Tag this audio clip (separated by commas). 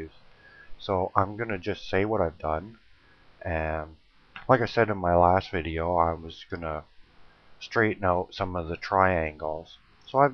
Speech